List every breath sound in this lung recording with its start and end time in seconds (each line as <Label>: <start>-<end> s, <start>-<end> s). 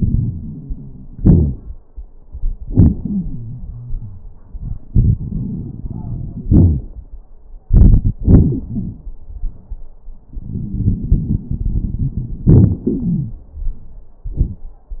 Inhalation: 0.00-1.17 s, 4.88-6.46 s, 10.38-12.50 s
Exhalation: 1.17-1.80 s, 6.49-7.13 s, 12.46-13.45 s
Wheeze: 1.17-1.55 s, 3.02-4.24 s, 8.22-8.66 s, 8.68-9.04 s, 12.89-13.45 s
Crackles: 0.00-1.17 s, 4.88-6.46 s, 6.49-7.13 s, 10.38-12.50 s